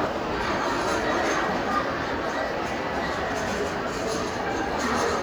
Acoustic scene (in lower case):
crowded indoor space